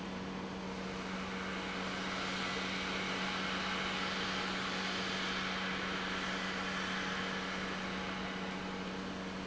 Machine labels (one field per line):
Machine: pump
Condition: normal